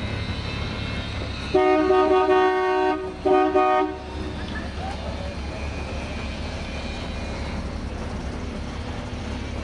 A person blows their horn while in traffic, peoples voices are very faint in the background